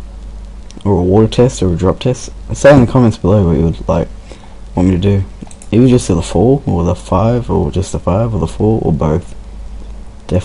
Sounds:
Speech

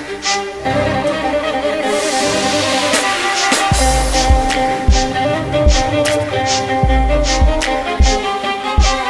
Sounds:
Musical instrument, Music

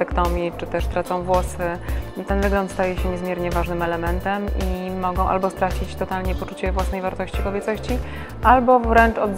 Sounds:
Music, Speech

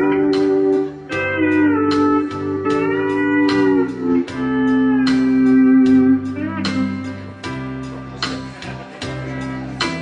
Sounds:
Music, Steel guitar

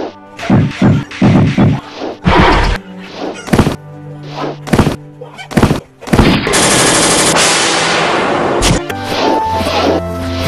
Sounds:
thwack

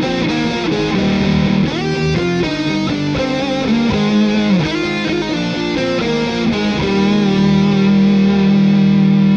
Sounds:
Plucked string instrument, Musical instrument, Music, Guitar, Electric guitar

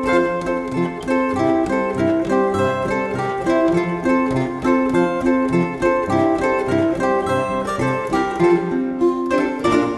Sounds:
Zither, Music

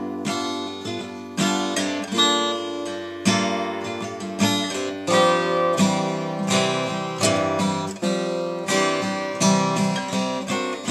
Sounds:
Music

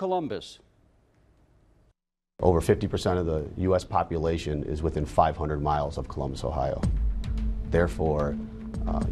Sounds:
Speech, Music

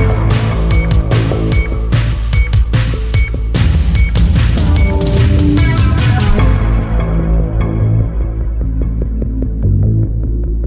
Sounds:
Soundtrack music, Music

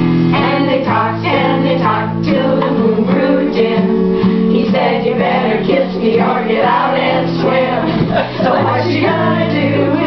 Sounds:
Music

